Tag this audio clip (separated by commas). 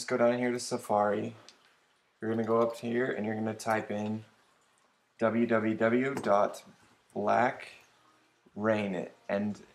Speech